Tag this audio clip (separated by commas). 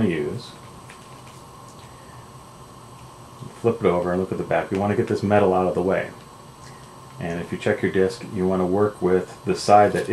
Speech